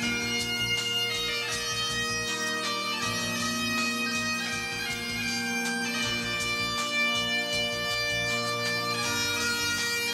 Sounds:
Bagpipes, Music

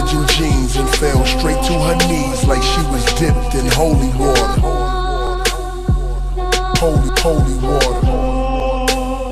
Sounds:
Music

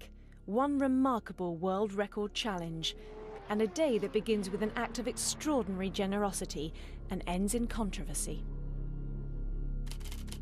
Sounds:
Vehicle, Motorcycle, Music, Speech

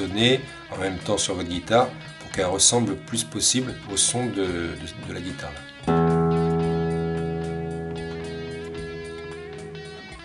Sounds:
Speech, Music

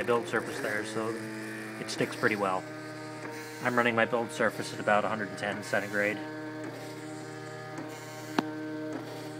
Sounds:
Speech, Printer

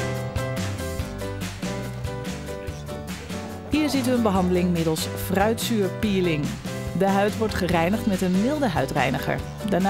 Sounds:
Speech, Music

